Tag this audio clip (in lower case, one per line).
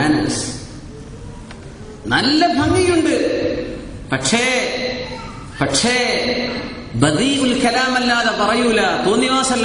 speech
man speaking
narration